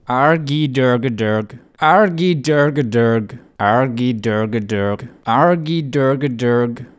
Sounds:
speech, human voice

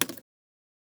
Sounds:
car, vehicle, motor vehicle (road)

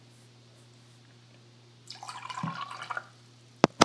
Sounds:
liquid, fill (with liquid), trickle, pour

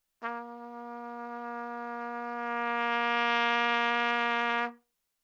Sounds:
music, musical instrument, trumpet, brass instrument

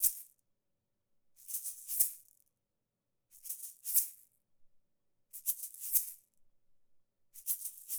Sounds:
percussion, rattle (instrument), music, musical instrument

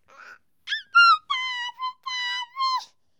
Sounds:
speech, human voice

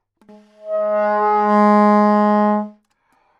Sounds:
wind instrument, music, musical instrument

